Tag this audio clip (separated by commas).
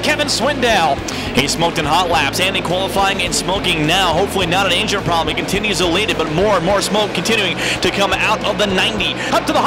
Speech